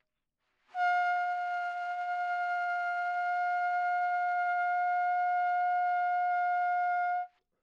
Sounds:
musical instrument
music
trumpet
brass instrument

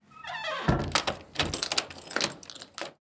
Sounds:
squeak

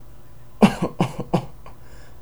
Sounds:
respiratory sounds
cough

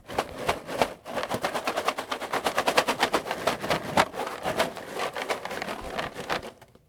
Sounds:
rattle

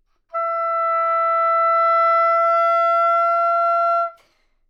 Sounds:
woodwind instrument
music
musical instrument

